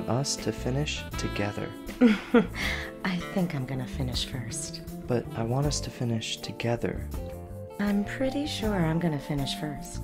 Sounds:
Speech, Music

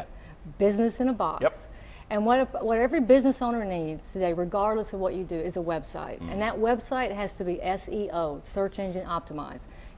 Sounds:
Speech, Conversation

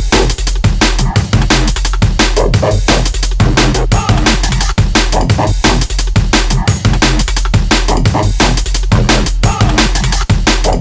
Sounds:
Drum and bass, Music

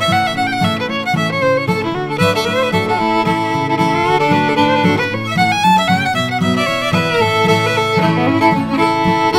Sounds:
fiddle, Musical instrument, Music

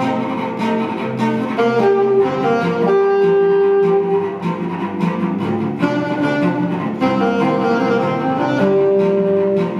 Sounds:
playing cello, Musical instrument, Music, Cello

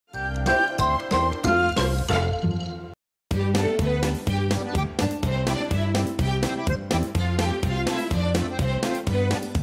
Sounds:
Jingle

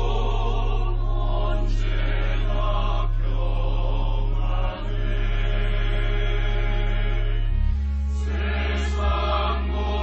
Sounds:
Choir, Female singing, Music, Male singing

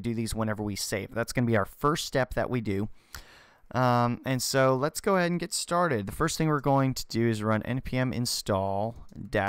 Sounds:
Speech

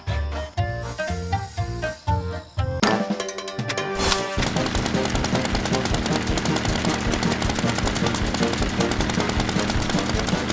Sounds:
Music

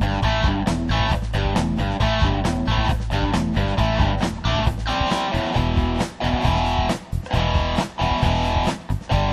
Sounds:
Music

